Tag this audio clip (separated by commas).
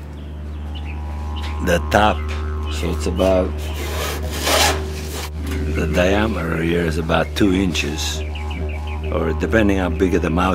Music, Didgeridoo, Speech